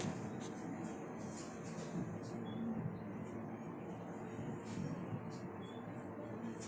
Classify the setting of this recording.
bus